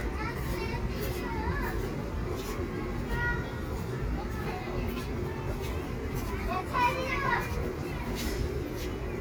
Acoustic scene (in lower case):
residential area